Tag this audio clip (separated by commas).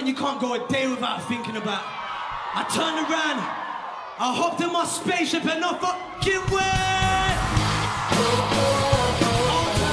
Music, Speech